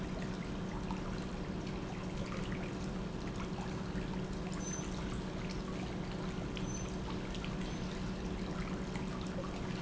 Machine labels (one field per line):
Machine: pump